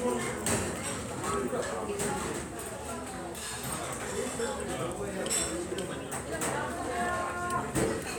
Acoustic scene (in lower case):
restaurant